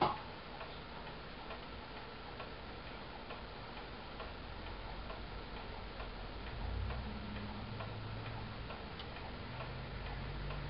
Steady clicking